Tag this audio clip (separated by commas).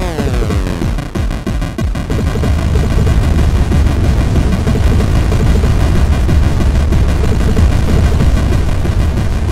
Music